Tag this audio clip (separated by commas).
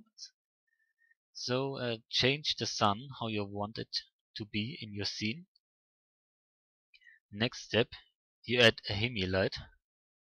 Speech